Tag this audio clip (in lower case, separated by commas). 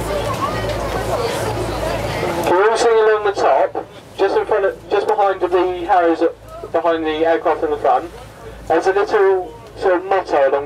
sailboat, speech